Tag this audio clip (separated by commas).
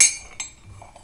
home sounds, dishes, pots and pans